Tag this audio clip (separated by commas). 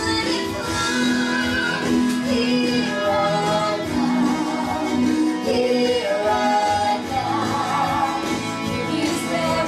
Music